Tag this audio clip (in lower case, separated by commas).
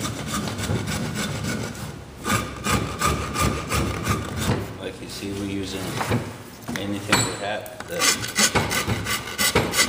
wood, speech